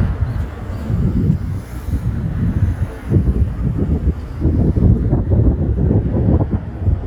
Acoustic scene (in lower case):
street